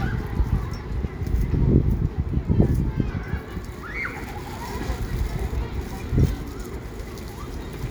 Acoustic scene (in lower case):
residential area